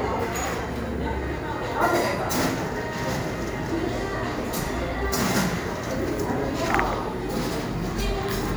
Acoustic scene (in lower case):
cafe